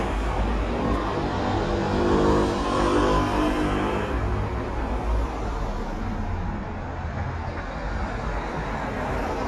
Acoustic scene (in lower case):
street